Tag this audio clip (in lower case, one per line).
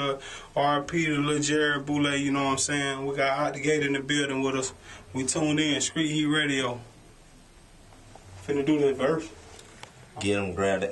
speech